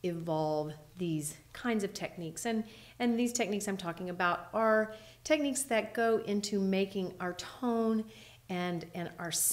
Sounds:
Speech

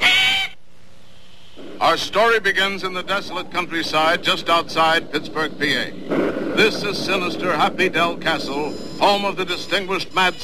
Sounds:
Speech

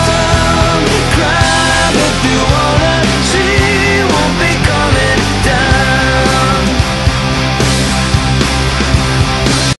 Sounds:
Music

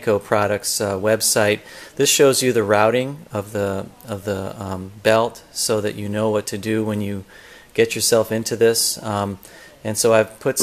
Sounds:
Speech

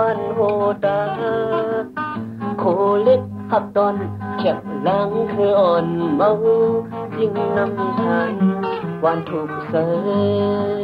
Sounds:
Music

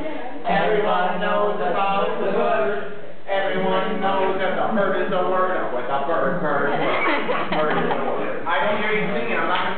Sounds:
Music

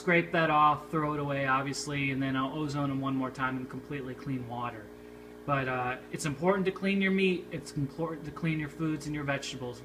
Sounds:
Speech

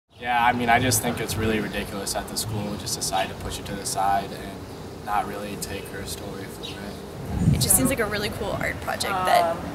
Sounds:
Speech

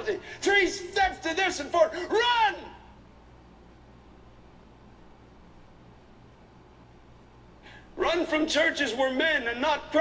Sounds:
Speech

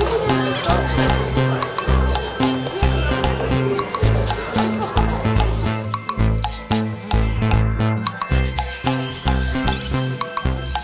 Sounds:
Music

